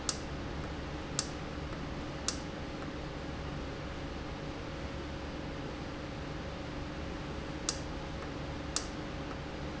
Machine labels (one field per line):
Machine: valve